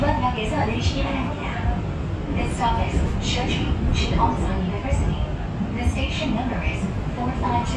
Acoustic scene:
subway train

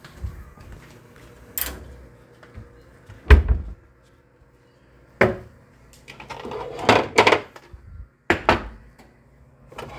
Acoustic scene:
kitchen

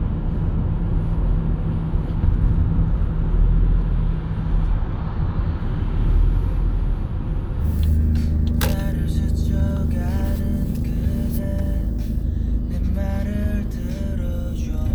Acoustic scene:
car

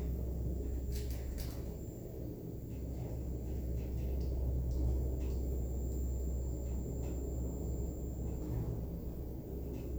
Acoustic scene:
elevator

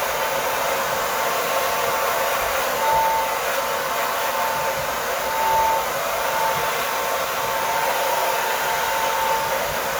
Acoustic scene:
restroom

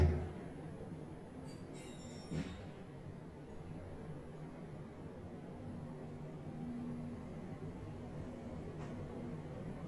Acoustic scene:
elevator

